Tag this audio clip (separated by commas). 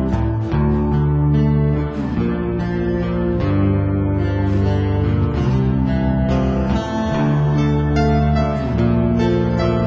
Music